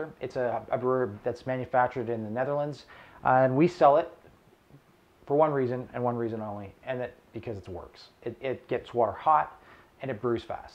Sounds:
Speech

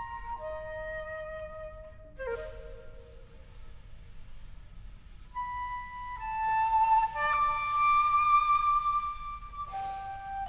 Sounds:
Music, Orchestra, Lullaby

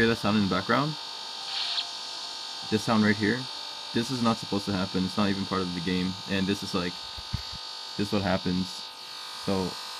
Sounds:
Hum

